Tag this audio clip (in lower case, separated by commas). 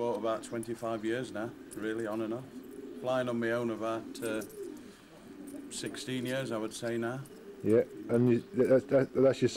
speech